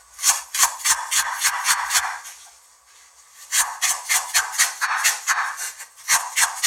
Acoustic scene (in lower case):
kitchen